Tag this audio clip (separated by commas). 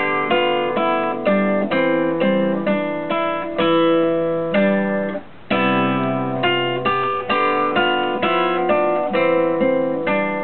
Strum, Musical instrument, Plucked string instrument, Acoustic guitar, Guitar, Music